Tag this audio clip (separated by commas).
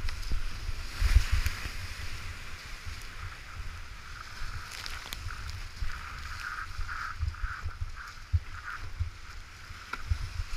Boat, kayak, Vehicle, rowboat